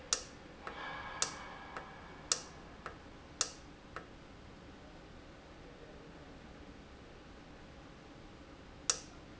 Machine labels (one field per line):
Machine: valve